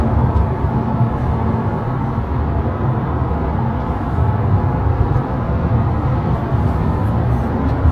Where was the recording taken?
in a car